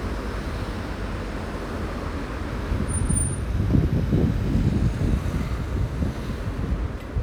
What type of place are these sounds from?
street